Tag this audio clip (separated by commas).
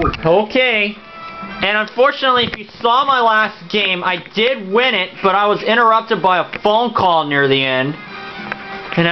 Music, Speech